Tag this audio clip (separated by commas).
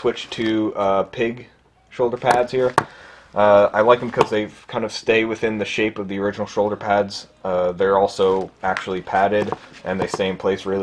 Speech